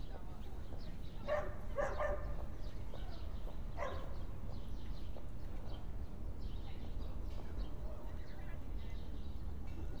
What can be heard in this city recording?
dog barking or whining